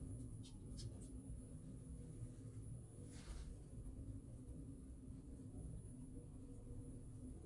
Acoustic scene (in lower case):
elevator